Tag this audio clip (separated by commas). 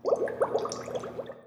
Liquid, Water